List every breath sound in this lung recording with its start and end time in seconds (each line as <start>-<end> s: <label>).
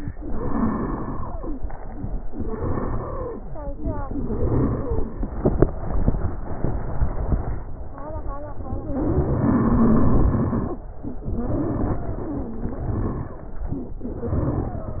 0.15-1.50 s: exhalation
0.15-1.50 s: stridor
2.24-3.40 s: exhalation
2.24-3.40 s: stridor
4.07-5.22 s: exhalation
4.07-5.22 s: stridor
8.93-10.81 s: exhalation
8.93-10.81 s: stridor
11.21-13.38 s: exhalation
11.21-13.38 s: stridor
14.04-15.00 s: exhalation
14.04-15.00 s: stridor